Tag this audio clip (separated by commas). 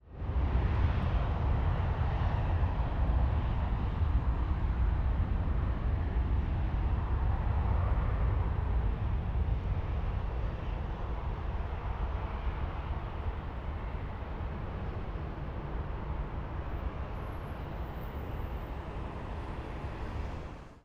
Vehicle, Aircraft